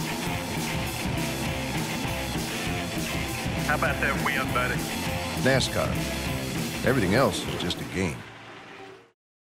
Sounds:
speech, music

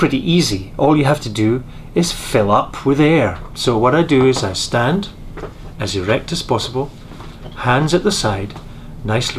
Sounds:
speech

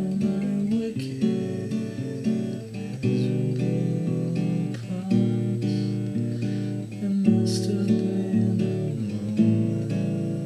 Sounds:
sad music, music

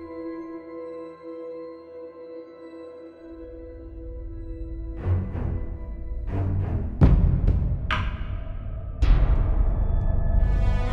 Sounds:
music

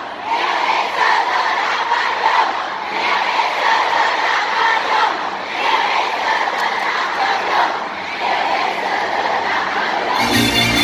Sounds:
people battle cry

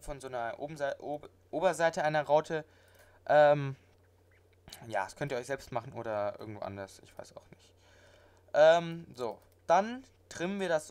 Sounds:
speech

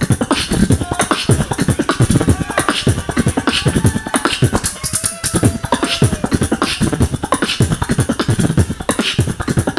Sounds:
beatboxing, music, vocal music

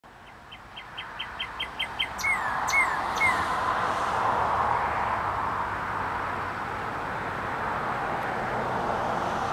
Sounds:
chirp, bird song, bird

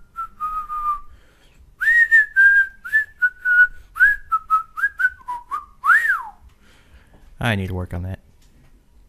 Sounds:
whistling

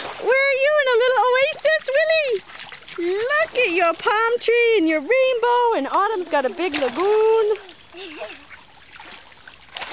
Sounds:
water, speech

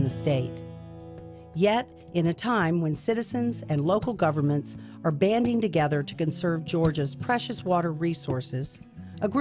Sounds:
speech, music

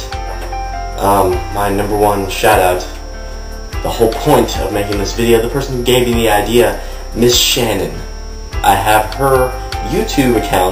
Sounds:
speech, music

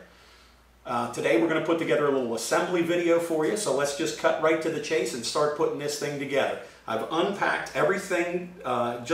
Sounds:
speech

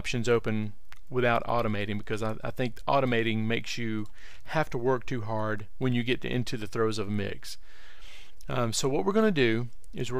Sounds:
speech

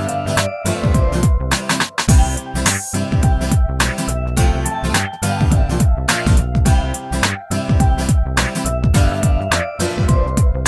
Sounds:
pop music, music, video game music

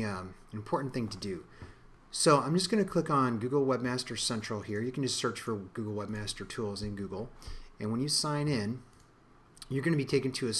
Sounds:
speech

